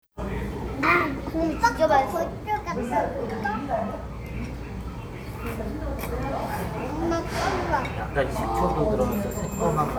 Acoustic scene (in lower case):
restaurant